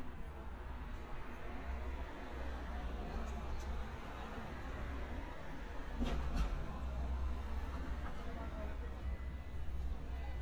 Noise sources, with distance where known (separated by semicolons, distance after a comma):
background noise